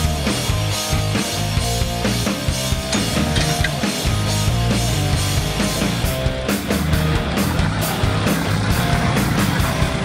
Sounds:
music

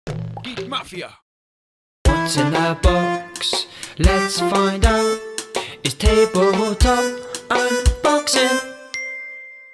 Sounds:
music
speech

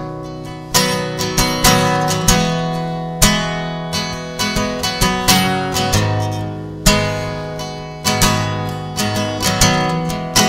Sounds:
music

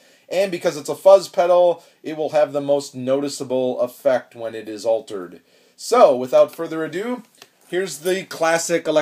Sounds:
speech

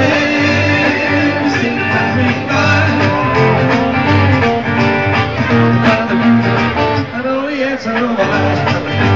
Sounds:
music

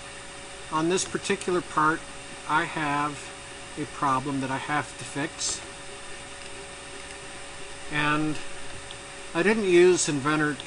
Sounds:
speech

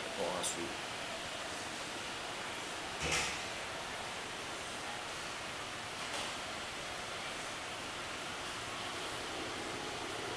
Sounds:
speech
pink noise

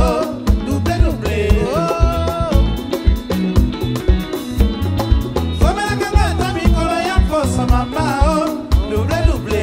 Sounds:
jazz
ska
folk music
music
song
singing
music of africa

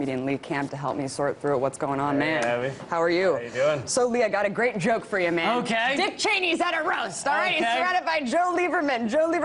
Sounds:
speech

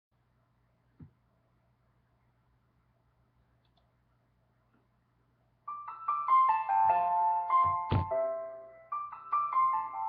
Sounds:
music

